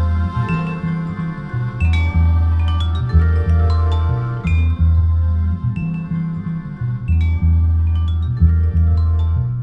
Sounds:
music

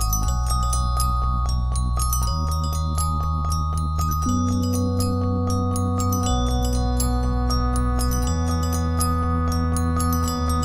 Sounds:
mallet percussion
glockenspiel
marimba

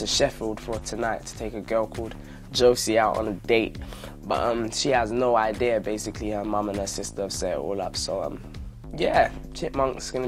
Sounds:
speech
music

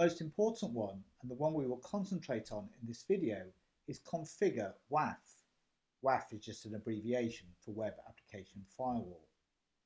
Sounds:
speech

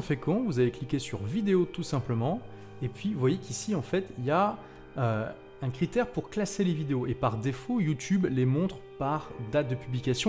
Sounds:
music
speech

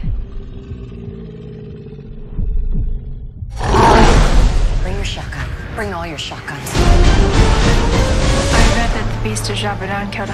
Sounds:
music
speech
inside a small room
inside a large room or hall

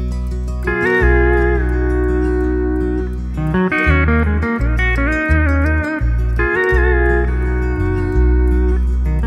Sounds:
music
steel guitar

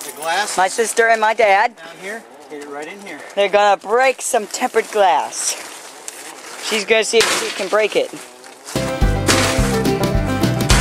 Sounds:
speech

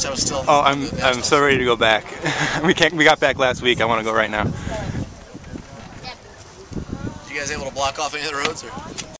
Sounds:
speech

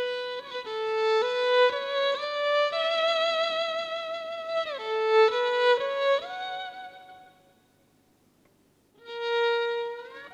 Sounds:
musical instrument
music
fiddle

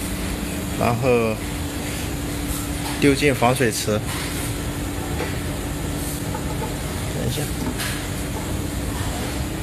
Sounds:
speech

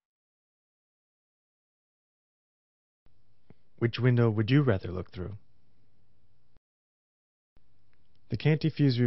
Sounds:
speech

